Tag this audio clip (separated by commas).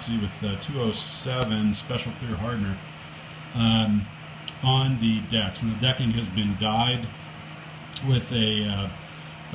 Speech